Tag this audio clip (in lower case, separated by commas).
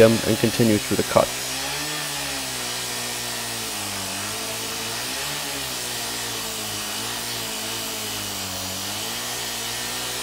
power tool, speech, tools